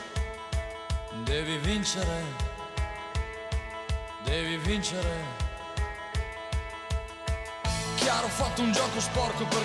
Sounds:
music

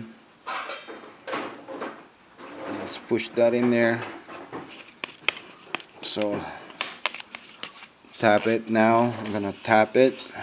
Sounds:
speech, inside a small room

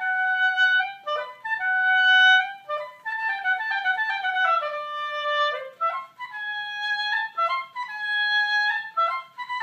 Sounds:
playing oboe

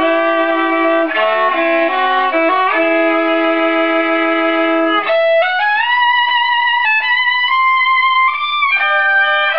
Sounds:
musical instrument, music, violin

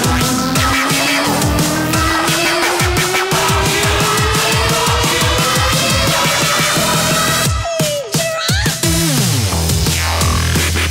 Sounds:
music, dubstep

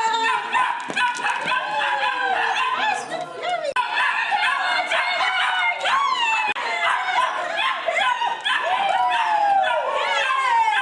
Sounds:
animal, pets, yip, dog, bow-wow, speech

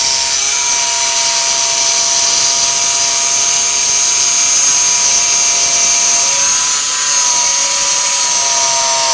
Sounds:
drill

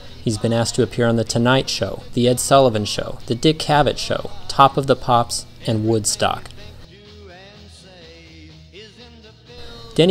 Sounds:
speech, music

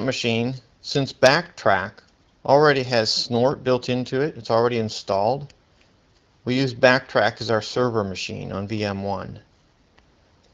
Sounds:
speech

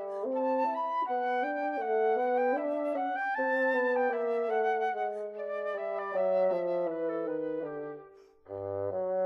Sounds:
music

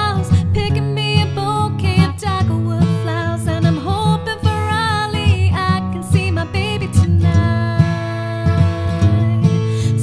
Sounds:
music

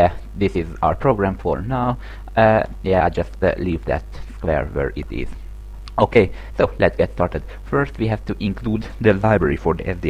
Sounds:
speech

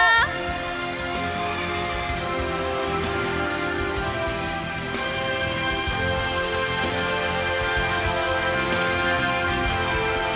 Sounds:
music

